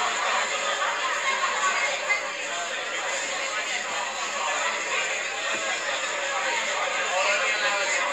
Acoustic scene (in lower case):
crowded indoor space